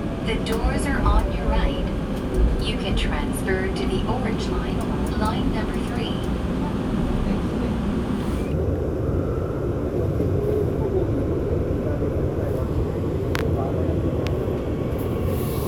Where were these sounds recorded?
on a subway train